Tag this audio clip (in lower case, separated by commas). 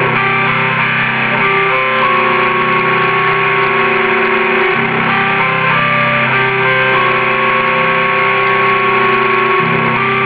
guitar, music, musical instrument